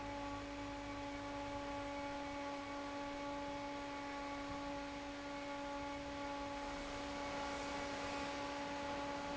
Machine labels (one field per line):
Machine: fan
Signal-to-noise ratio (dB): 6 dB